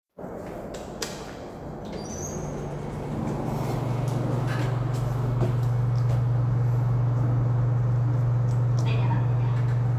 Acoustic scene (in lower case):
elevator